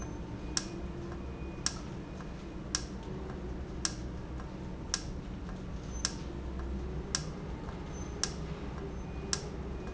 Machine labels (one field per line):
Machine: valve